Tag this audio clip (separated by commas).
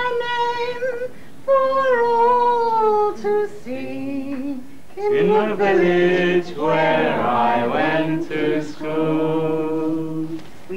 Chant